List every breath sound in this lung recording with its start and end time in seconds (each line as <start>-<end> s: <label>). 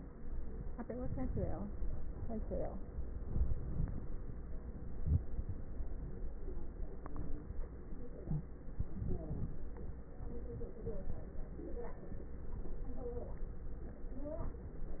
3.21-4.22 s: inhalation
3.21-4.22 s: crackles
4.70-6.11 s: exhalation
4.70-6.11 s: crackles
8.23-8.51 s: wheeze
8.71-10.13 s: inhalation
8.71-10.13 s: crackles